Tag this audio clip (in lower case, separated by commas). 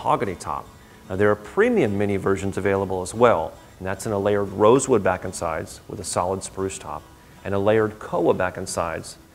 speech, music